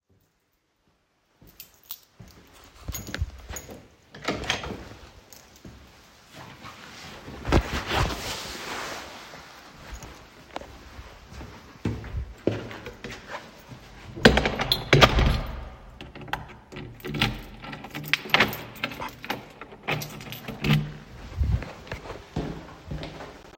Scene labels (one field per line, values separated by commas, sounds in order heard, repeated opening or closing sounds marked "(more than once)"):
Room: hallway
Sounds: footsteps, keys, door (more than once)